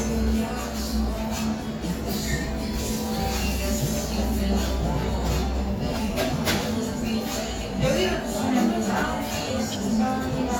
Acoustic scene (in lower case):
cafe